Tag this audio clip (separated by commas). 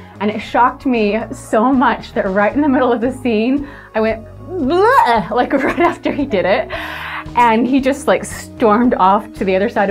Speech, Music